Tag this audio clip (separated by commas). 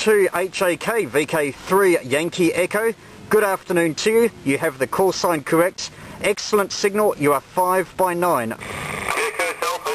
inside a small room, Speech, Radio